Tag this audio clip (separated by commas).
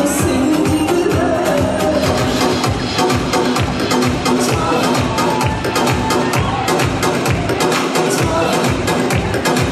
Music, Dance music